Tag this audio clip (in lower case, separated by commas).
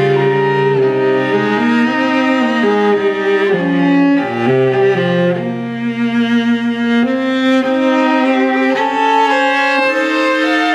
music, musical instrument, violin